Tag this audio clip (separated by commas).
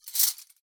Domestic sounds, Cutlery